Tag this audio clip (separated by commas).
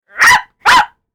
Animal, Dog, Domestic animals, Bark